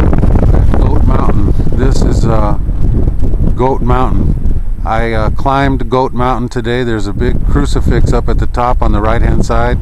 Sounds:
Speech

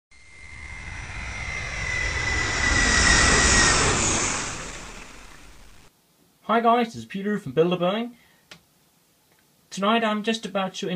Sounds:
Fixed-wing aircraft

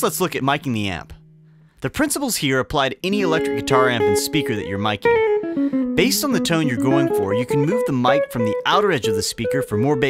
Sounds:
Musical instrument, Guitar, Speech, Plucked string instrument, Music

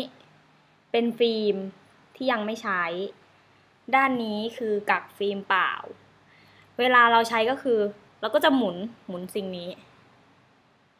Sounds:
Speech

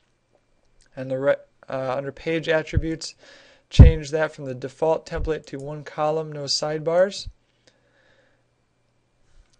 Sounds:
Speech

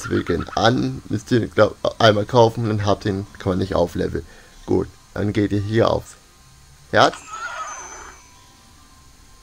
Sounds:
Music, whinny, Speech

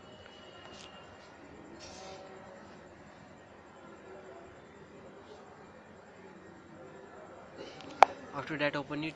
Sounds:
Speech

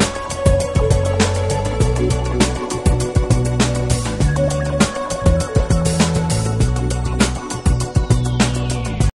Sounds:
Music

